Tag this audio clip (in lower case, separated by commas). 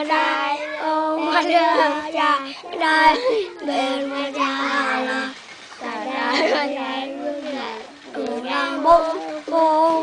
choir, child singing